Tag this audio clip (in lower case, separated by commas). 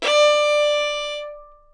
music, bowed string instrument, musical instrument